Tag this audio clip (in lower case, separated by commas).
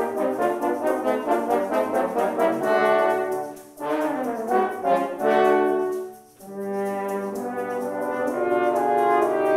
playing french horn